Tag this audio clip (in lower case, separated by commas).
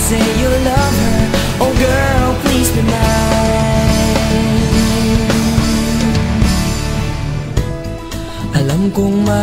music